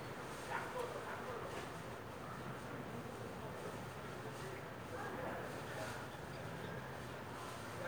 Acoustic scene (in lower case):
residential area